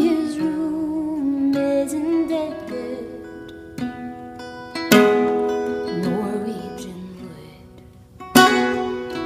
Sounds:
music

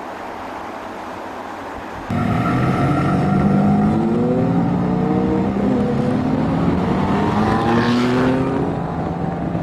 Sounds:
outside, urban or man-made, auto racing, vehicle, car

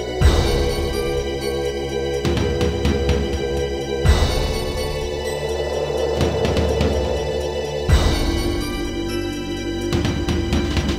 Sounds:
music, scary music

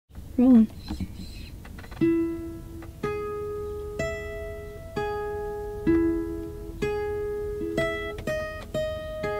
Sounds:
music, speech

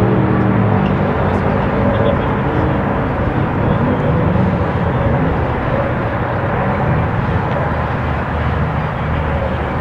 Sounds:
outside, urban or man-made, vehicle, speech, car

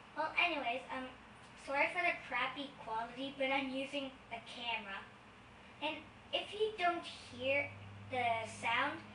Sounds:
speech

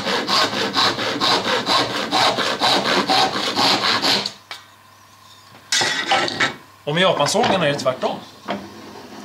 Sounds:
wood, sawing

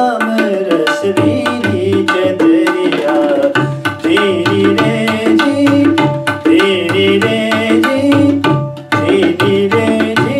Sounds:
musical instrument, music, tabla, percussion

